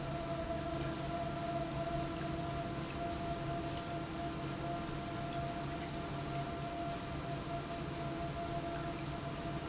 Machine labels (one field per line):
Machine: pump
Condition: normal